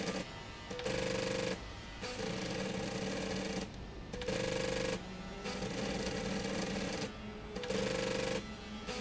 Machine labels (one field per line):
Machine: slide rail